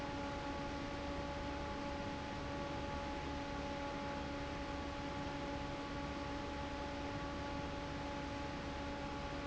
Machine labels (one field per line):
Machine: fan